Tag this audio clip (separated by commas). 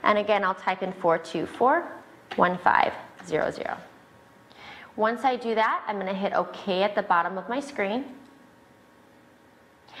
woman speaking